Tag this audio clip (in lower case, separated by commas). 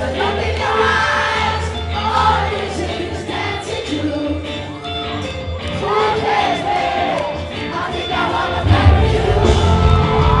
singing, music